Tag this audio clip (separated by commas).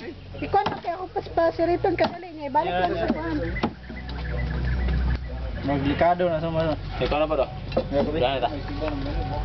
Music, Speech